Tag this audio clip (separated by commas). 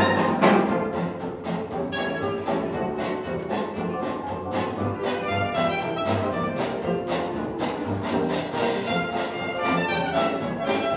Clarinet, Brass instrument, Trombone, Trumpet